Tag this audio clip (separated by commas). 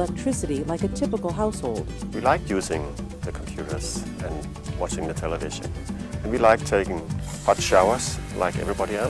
Speech, Music